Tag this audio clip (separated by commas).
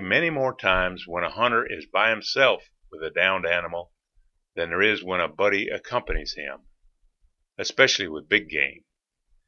Speech